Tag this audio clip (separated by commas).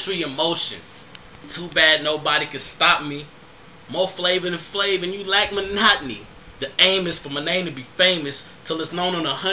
Speech